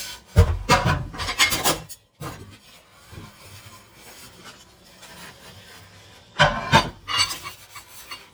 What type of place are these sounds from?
kitchen